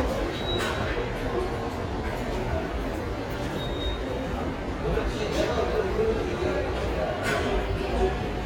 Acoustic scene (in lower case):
subway station